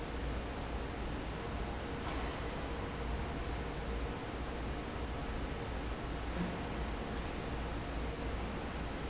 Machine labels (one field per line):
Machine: fan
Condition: normal